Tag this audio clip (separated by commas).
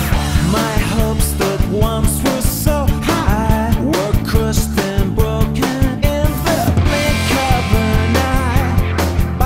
Music